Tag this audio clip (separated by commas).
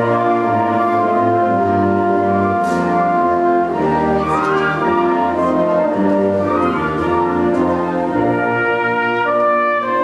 Music